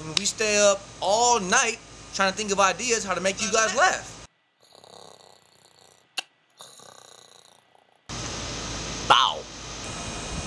A male is giving a speech while someone else is snoring away